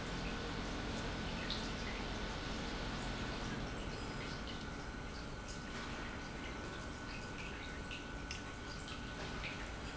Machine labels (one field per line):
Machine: pump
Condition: normal